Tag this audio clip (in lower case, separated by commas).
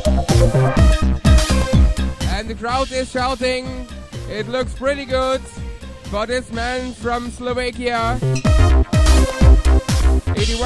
music, speech